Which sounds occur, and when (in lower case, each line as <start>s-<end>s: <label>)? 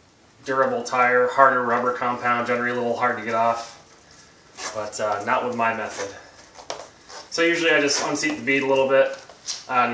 0.0s-9.9s: mechanisms
0.4s-3.8s: male speech
0.4s-0.7s: generic impact sounds
1.7s-1.9s: generic impact sounds
2.4s-2.8s: generic impact sounds
3.2s-3.4s: generic impact sounds
3.8s-4.1s: generic impact sounds
4.0s-4.3s: breathing
4.5s-4.8s: surface contact
4.7s-6.1s: male speech
5.1s-5.2s: tick
5.5s-5.5s: tick
5.8s-6.2s: surface contact
6.3s-6.9s: generic impact sounds
7.0s-7.3s: surface contact
7.3s-9.2s: male speech
7.9s-8.1s: surface contact
8.2s-8.3s: tick
8.5s-8.8s: generic impact sounds
9.0s-9.3s: generic impact sounds
9.4s-9.5s: tick
9.7s-9.9s: male speech